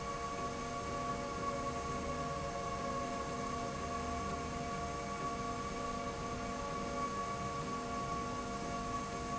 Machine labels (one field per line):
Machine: slide rail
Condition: normal